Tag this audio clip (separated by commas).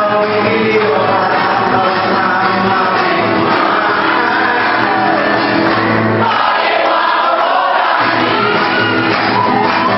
Music, Crowd